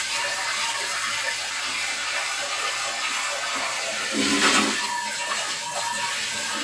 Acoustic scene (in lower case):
kitchen